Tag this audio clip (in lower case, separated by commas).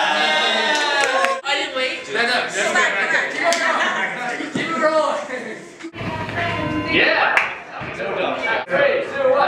speech